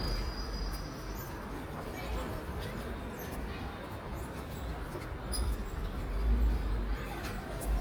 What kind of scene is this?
park